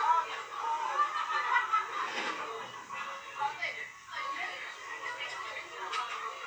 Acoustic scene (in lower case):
restaurant